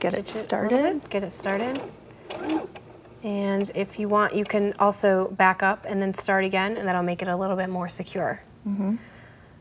A woman talking and then starting a sewing machine and commentating again